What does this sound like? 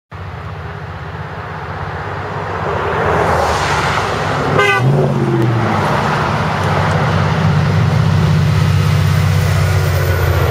Traffic sounds and horn honk